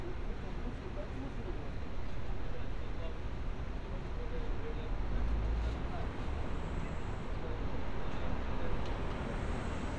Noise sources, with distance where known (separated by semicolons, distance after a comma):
engine of unclear size